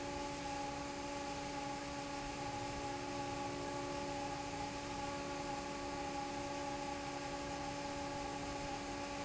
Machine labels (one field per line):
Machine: fan